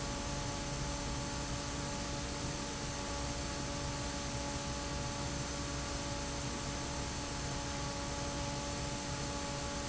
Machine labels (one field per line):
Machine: fan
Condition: normal